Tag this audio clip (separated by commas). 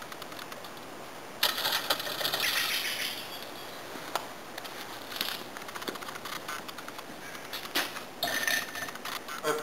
Bicycle, Speech